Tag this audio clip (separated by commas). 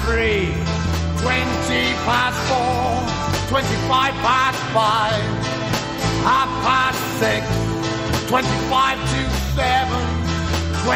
Music, Speech